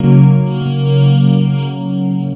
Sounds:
Plucked string instrument, Guitar, Music, Musical instrument

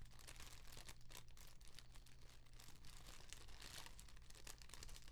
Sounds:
Fire

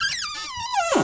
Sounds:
home sounds, Cupboard open or close

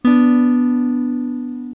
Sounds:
Guitar, Strum, Musical instrument, Music, Plucked string instrument, Acoustic guitar

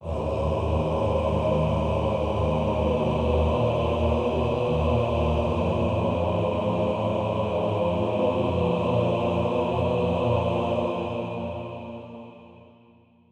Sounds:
Musical instrument, Human voice, Music, Singing

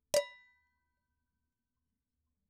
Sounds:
Domestic sounds, dishes, pots and pans

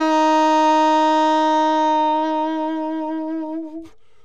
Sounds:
Musical instrument, Music, Wind instrument

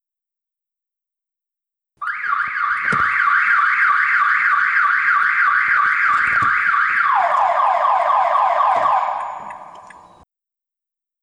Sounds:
Alarm

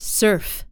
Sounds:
Human voice, woman speaking, Speech

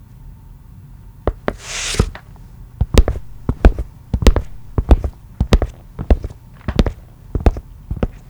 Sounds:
Walk

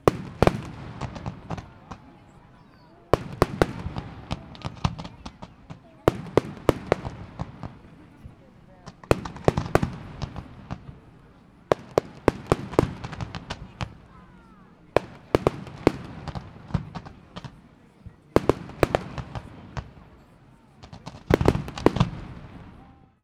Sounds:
Fireworks, Explosion

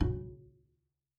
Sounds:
Bowed string instrument, Musical instrument, Music

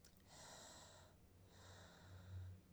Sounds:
Breathing, Respiratory sounds

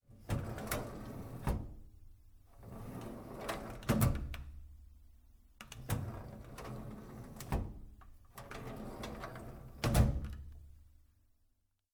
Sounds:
Domestic sounds, Drawer open or close

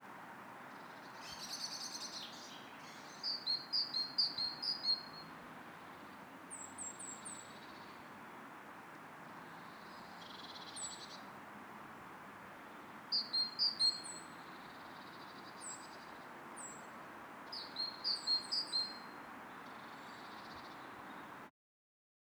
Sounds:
bird call, Bird, Wild animals, Animal, Chirp

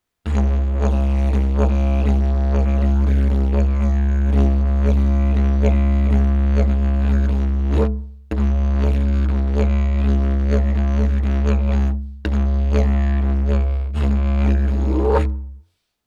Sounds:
Musical instrument, Music

